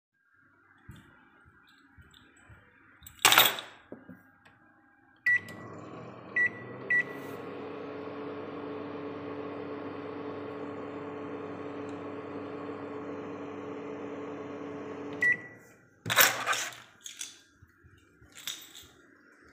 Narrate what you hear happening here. I entered the kitchen with keys in hand. By the force of habit I threw them onto the table and turned on the microwave to heat my dinner. Then i noticed that I missplaced my keys, took them and turned off the microwave and left to place the kyes where they belong.